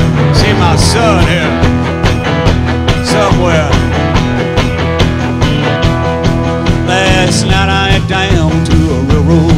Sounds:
Rock and roll, Music

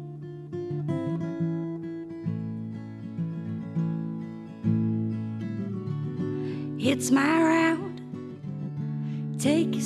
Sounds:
Music, Acoustic guitar

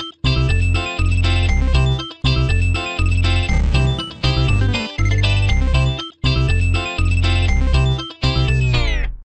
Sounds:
Music

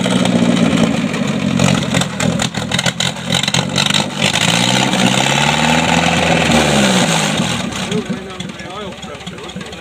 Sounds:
Engine, Speech

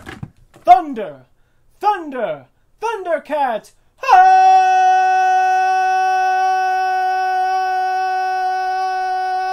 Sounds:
Speech, inside a small room

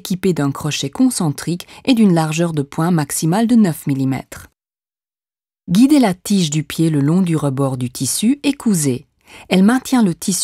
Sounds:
Speech

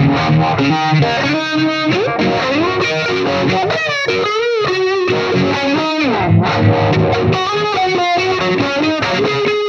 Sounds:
Music, Effects unit, Guitar

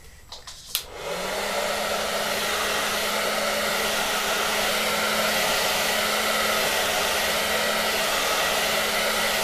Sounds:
Hair dryer

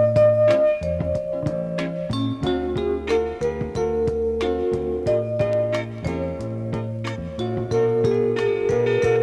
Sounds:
Music

